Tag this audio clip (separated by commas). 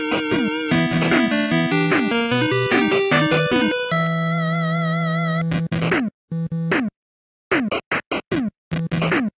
Music